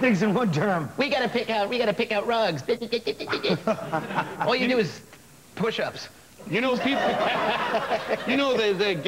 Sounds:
speech

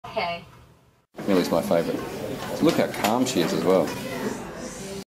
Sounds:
speech
bird
animal

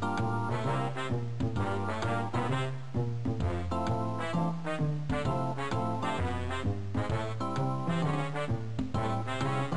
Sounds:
music

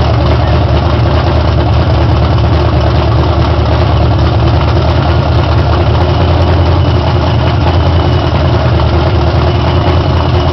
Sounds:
vehicle

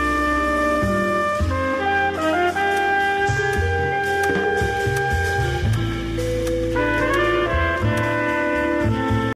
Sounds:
music

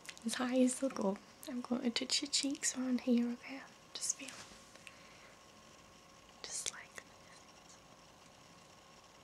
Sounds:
whispering
speech

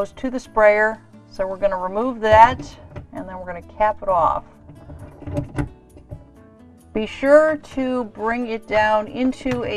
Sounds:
speech
music

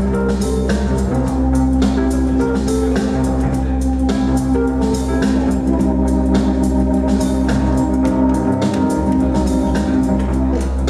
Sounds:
music

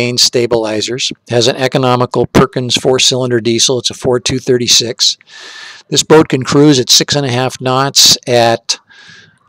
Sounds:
speech

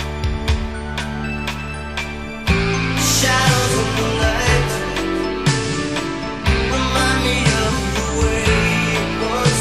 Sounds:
music

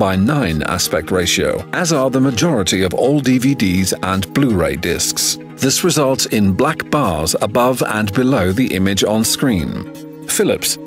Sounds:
music
speech

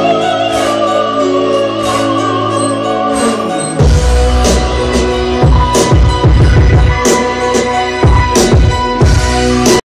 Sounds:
music
disco

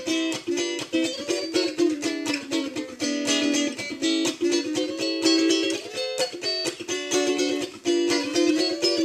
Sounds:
plucked string instrument
guitar
acoustic guitar
musical instrument
strum
music

